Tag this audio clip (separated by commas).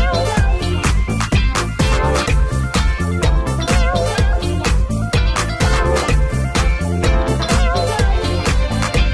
Music